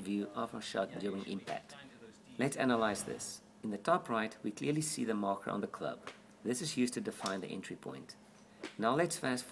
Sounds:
Speech

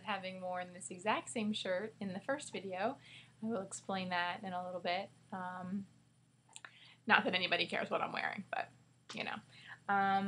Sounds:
Speech

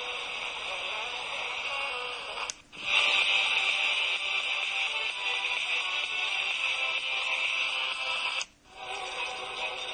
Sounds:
Music, Radio

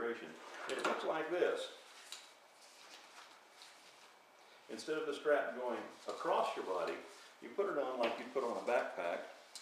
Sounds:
Speech

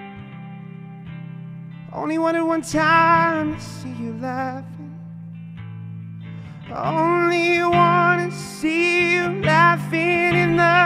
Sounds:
Music

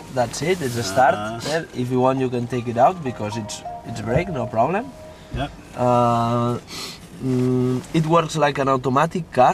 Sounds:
Speech

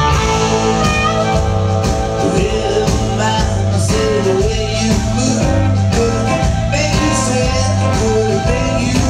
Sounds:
Music, Blues

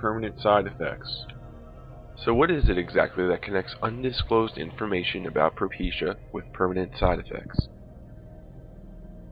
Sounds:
Speech, Music

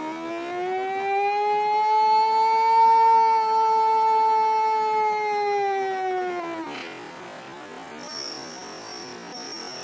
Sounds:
Siren, Music

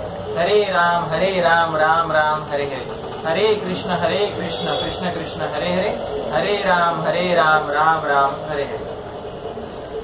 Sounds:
Mantra

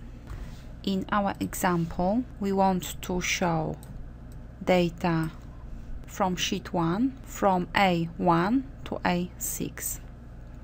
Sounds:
Speech

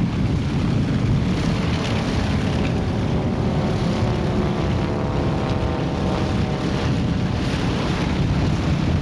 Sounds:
Vehicle, Engine

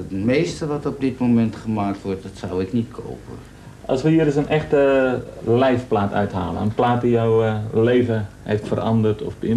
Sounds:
Speech

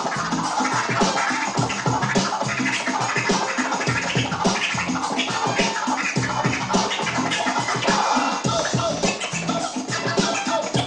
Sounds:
Music, Scratching (performance technique)

